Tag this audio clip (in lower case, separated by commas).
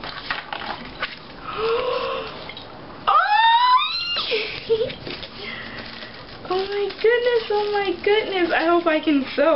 inside a small room, speech